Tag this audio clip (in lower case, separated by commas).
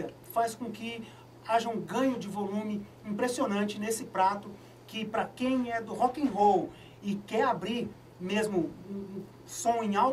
inside a small room, speech